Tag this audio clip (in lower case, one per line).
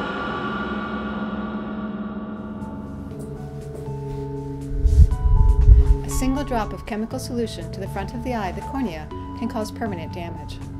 speech
music